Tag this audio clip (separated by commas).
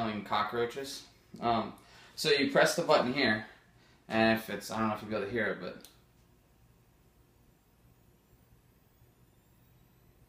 Speech